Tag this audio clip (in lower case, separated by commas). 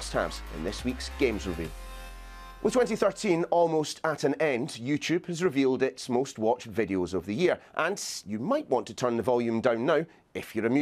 speech, music